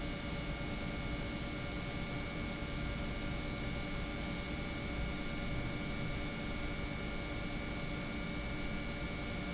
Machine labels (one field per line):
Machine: pump